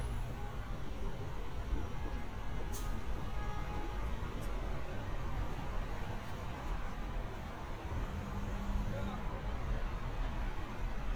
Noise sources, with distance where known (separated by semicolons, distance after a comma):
car horn, far; person or small group talking, far